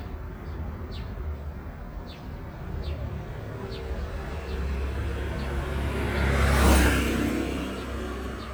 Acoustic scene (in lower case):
residential area